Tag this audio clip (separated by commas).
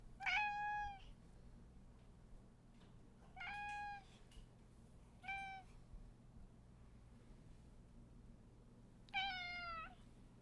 Domestic animals, Cat, Meow, Animal